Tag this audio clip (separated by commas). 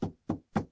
Wood, Tap